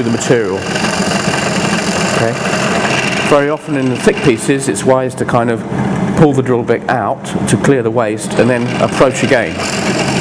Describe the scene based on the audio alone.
A man is speaking and a tool is running